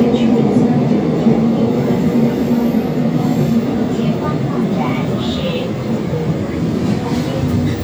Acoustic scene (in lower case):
subway train